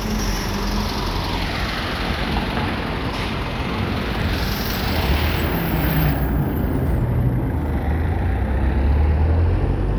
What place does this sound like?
street